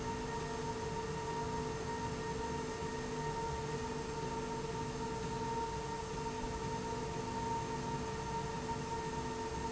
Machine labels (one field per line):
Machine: slide rail